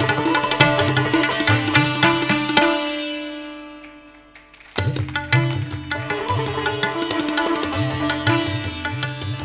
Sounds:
playing sitar

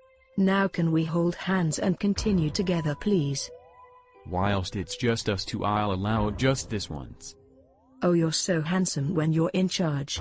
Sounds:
speech

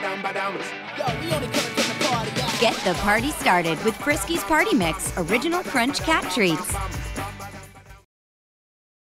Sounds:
speech
music

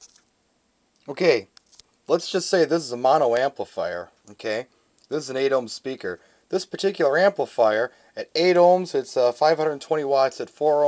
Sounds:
speech

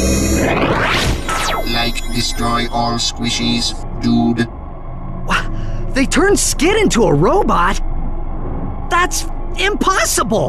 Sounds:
speech

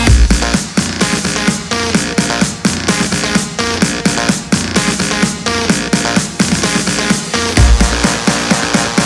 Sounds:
electronic dance music
music

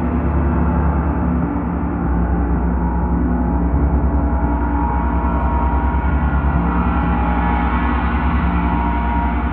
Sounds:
playing gong

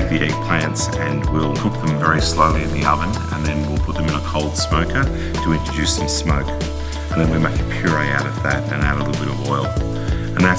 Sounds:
music
speech

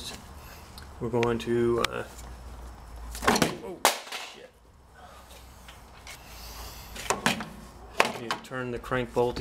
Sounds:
speech

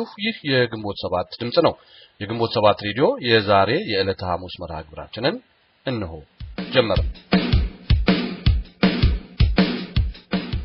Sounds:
music
speech

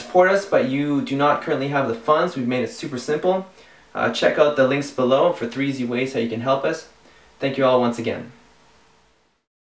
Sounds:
speech

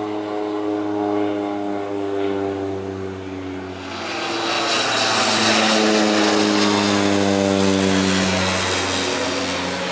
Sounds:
airplane flyby

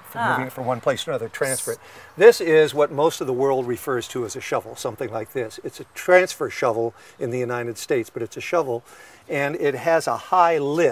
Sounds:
speech

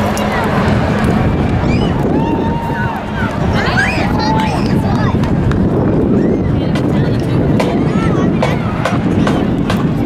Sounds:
speech

